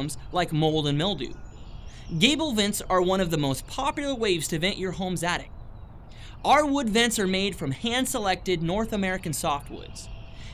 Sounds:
Speech

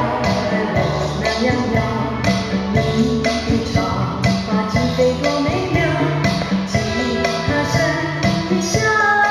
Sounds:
Music

